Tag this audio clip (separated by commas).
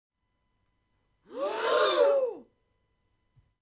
Breathing, Respiratory sounds